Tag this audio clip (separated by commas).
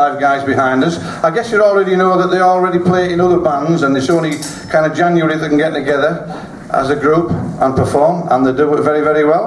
Speech